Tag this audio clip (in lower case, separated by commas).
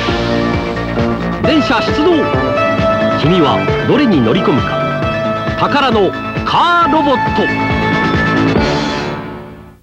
speech, music